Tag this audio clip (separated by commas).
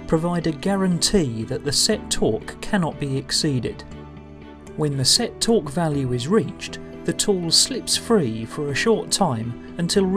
Speech, Music